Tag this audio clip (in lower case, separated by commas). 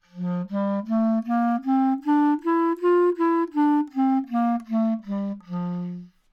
wind instrument, music, musical instrument